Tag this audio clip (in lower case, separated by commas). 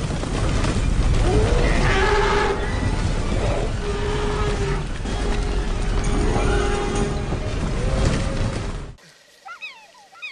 dinosaurs bellowing